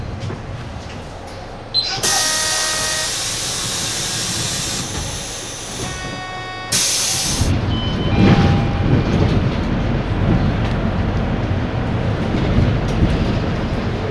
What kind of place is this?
bus